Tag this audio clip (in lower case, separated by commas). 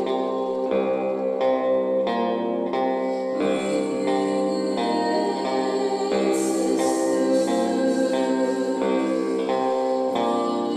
echo, music